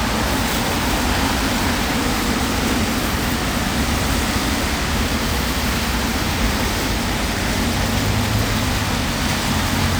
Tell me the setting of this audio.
street